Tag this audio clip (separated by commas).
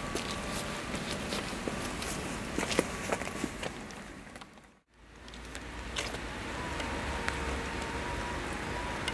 Rain